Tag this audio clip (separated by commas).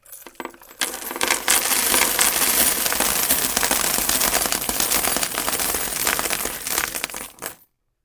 Coin (dropping), Domestic sounds